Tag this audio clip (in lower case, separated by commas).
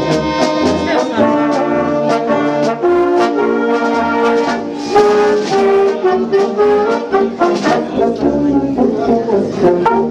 trombone, speech, musical instrument, brass instrument, playing trombone, music